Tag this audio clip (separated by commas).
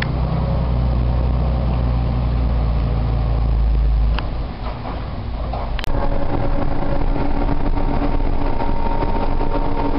Truck, Vehicle